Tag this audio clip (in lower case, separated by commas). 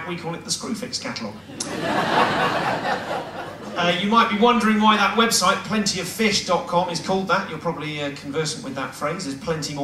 speech, chortle